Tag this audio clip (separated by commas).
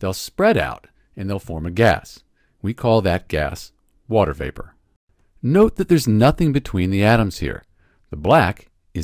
Speech